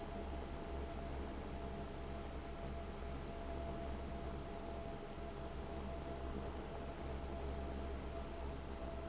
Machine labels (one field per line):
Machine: fan